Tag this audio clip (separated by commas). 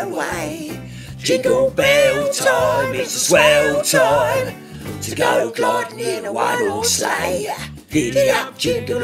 Music